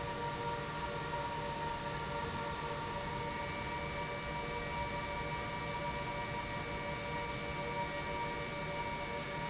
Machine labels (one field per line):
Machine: pump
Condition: normal